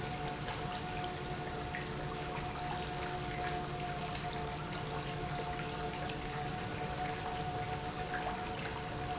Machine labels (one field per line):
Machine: pump